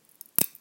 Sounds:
crackle, crack

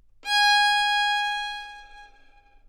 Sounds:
musical instrument, bowed string instrument, music

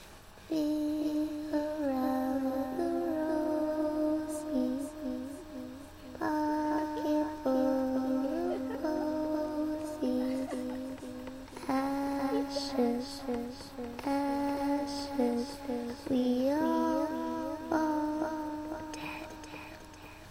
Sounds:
human voice, singing

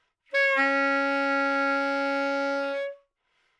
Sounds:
musical instrument, music, wind instrument

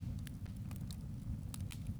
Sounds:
fire, crackle

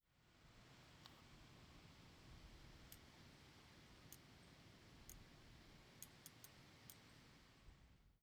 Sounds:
wind

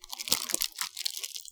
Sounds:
crumpling

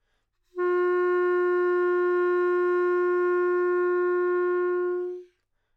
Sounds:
musical instrument, woodwind instrument, music

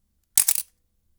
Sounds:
camera, mechanisms

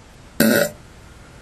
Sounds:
fart

